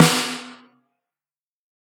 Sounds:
musical instrument, snare drum, percussion, music, drum

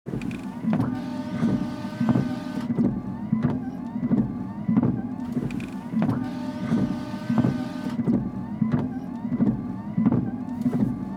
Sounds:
vehicle, motor vehicle (road), car

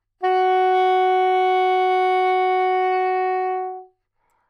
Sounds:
woodwind instrument, music, musical instrument

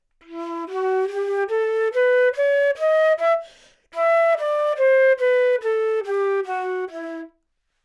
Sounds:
woodwind instrument, musical instrument, music

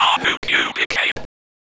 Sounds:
human voice, whispering

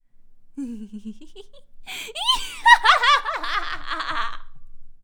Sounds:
human voice, laughter

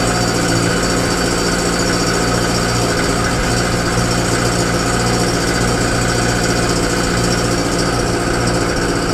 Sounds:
idling, engine

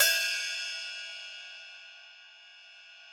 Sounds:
music, cymbal, crash cymbal, percussion, hi-hat, musical instrument

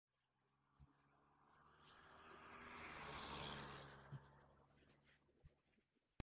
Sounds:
vehicle, motor vehicle (road), truck

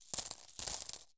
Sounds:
domestic sounds, coin (dropping)

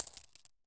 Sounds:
coin (dropping), home sounds

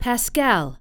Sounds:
female speech, speech, human voice

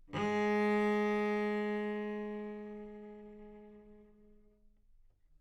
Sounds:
bowed string instrument, music, musical instrument

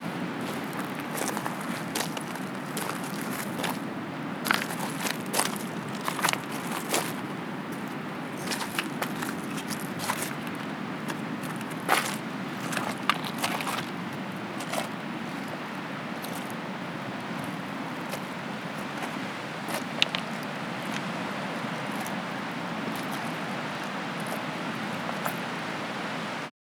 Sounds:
ocean, water, surf

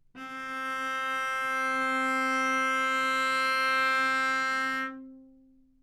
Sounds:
music, bowed string instrument, musical instrument

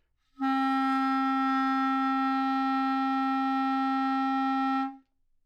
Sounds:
music, musical instrument, woodwind instrument

